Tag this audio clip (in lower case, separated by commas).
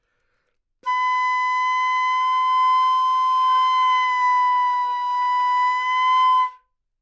woodwind instrument, music, musical instrument